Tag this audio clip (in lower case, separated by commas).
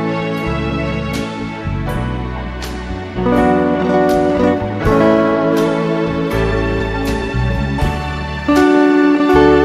music, guitar, plucked string instrument, musical instrument